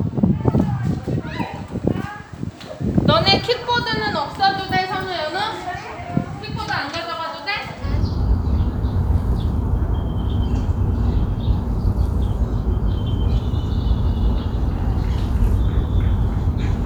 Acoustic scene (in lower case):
park